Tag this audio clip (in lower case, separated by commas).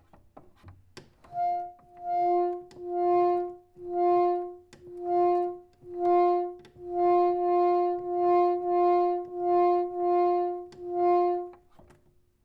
musical instrument, organ, keyboard (musical), music